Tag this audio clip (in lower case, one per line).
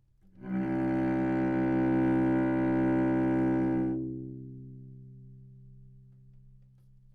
music
musical instrument
bowed string instrument